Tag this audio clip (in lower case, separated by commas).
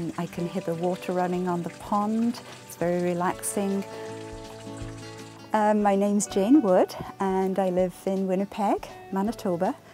music, speech